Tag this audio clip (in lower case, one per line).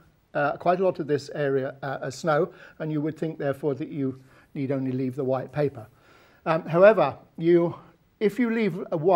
speech